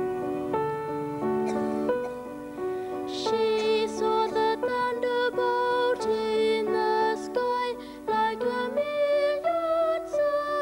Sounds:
Music, Traditional music

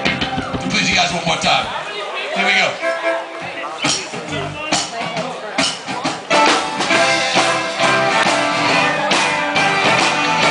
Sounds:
Music, Speech

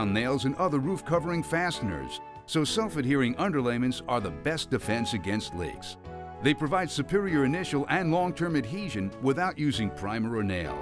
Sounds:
Speech, Music

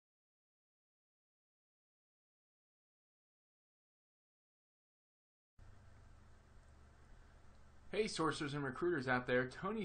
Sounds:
Speech

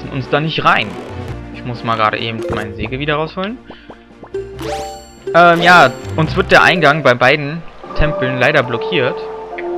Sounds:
Music, Speech

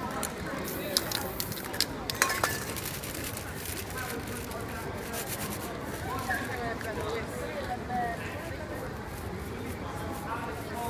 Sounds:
Speech, Spray

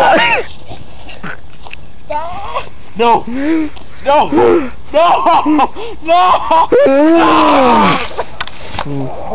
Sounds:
Speech

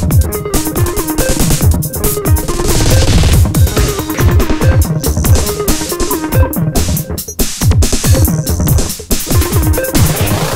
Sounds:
Musical instrument, Drum machine, Music, Drum, Drum kit

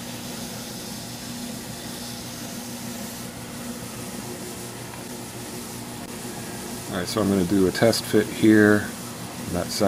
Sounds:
Speech, Tools

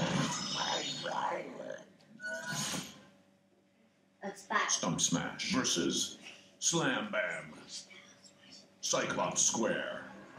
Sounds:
Speech

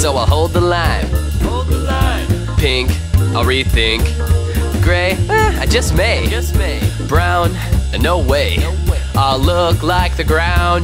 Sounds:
Music

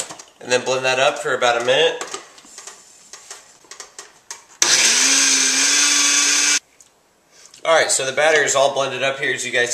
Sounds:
Blender

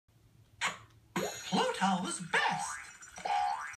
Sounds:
Music, Speech

